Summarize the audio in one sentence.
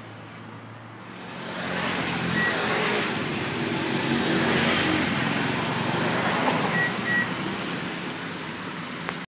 A vehicle speeds by while a beeping comes from the foreground